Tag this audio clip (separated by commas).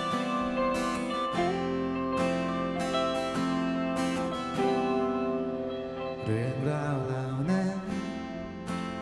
Music